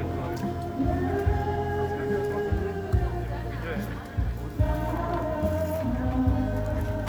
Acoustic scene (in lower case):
park